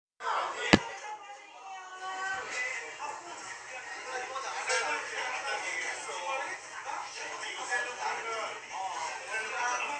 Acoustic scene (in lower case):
restaurant